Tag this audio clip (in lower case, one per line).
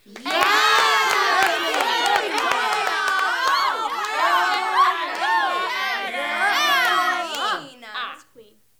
human group actions
cheering